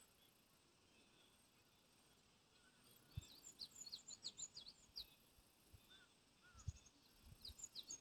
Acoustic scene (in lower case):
park